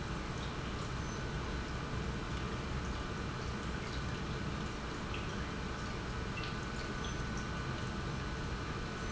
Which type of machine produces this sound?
pump